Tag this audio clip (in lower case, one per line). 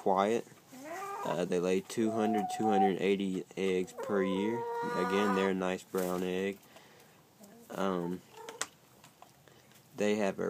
speech
rooster